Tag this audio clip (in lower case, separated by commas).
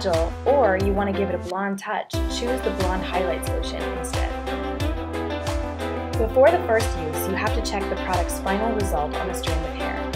speech, music